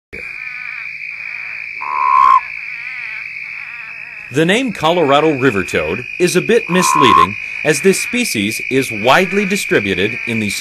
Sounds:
Speech, Animal, Frog

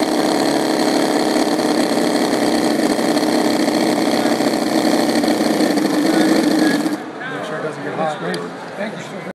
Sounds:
Medium engine (mid frequency), Speech, Engine, Idling

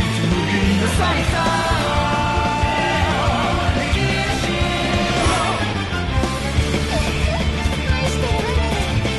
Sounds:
Music

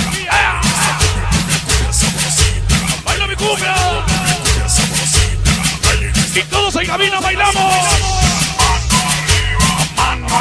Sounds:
Music

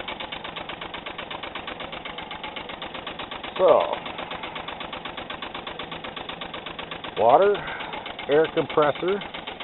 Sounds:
Speech

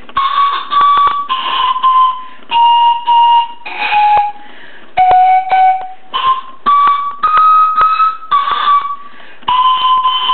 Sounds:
Flute, inside a small room, Music, Musical instrument

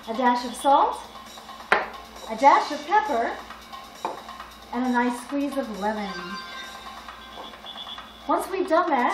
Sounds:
Music, Speech

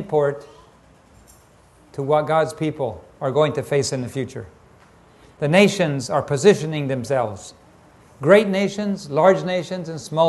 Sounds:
Speech

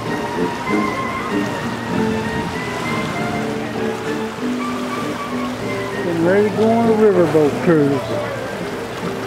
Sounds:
Music, Speech

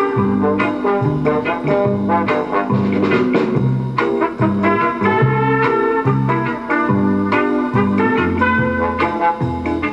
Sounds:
Music, Background music

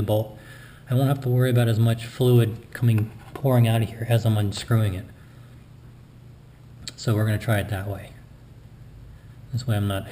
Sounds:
Speech

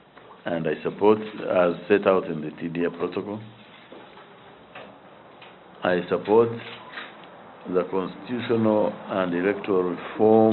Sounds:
inside a large room or hall, Speech

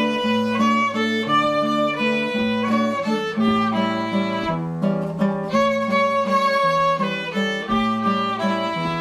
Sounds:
Guitar, Music, Musical instrument, Plucked string instrument, Acoustic guitar, Violin

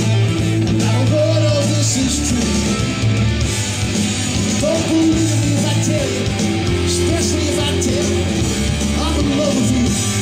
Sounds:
Music

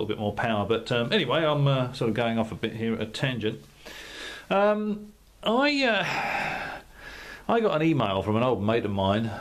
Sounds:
Speech

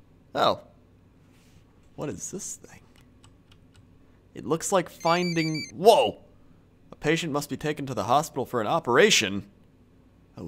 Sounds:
Speech

